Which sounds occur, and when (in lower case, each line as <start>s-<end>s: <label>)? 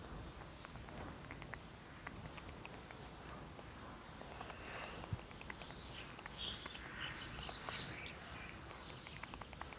0.0s-9.7s: wind
0.3s-0.4s: sound effect
0.6s-1.0s: sound effect
1.2s-1.6s: sound effect
2.0s-3.6s: sound effect
4.1s-5.7s: sound effect
4.3s-5.1s: breathing
5.0s-6.0s: bird call
5.1s-5.2s: tap
6.1s-6.3s: sound effect
6.3s-8.5s: bird call
6.6s-6.8s: sound effect
6.8s-7.3s: breathing
7.2s-7.5s: sound effect
7.6s-7.8s: sound effect
8.6s-9.7s: sound effect
8.7s-9.2s: bird call
9.6s-9.7s: bird call